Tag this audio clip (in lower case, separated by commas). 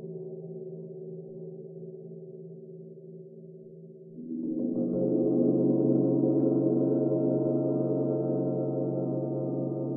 playing gong